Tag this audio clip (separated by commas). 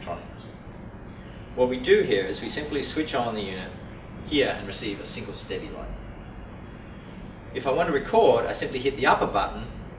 Speech